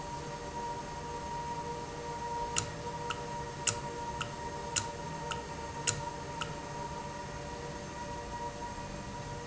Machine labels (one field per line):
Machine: valve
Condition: normal